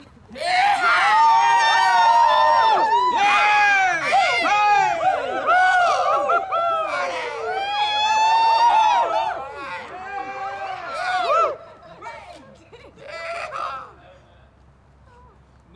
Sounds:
human group actions, cheering

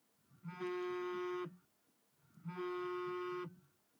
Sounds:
telephone, alarm

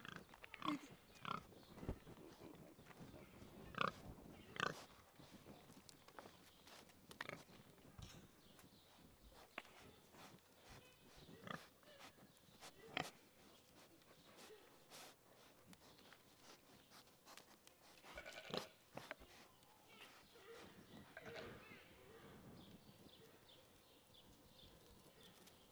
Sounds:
animal, livestock

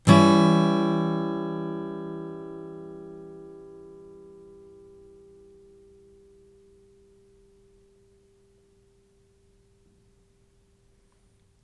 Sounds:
strum, guitar, music, plucked string instrument, musical instrument

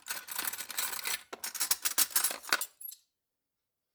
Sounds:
cutlery, home sounds

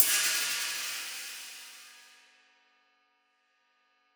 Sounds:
musical instrument, cymbal, percussion, hi-hat, music

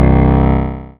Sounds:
piano, keyboard (musical), musical instrument, music

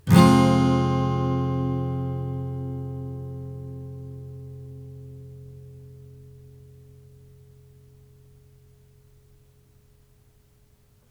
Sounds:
musical instrument, plucked string instrument, strum, guitar, music

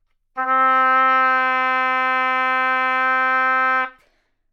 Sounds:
music, musical instrument, woodwind instrument

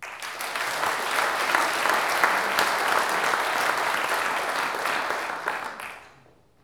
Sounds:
applause, human group actions

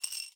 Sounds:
domestic sounds, coin (dropping), glass

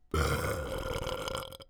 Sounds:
burping

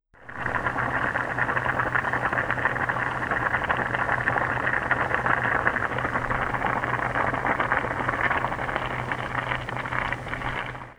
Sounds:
boiling, liquid

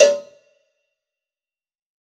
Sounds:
cowbell, bell

